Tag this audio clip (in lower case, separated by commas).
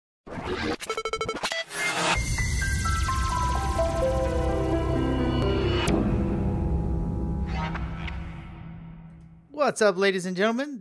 speech, music